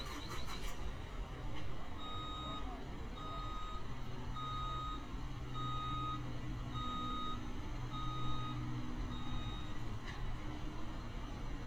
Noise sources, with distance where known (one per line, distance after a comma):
large-sounding engine, near
reverse beeper, near